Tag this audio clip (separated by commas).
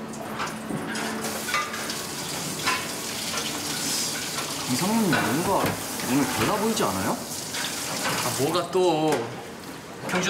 Speech, inside a large room or hall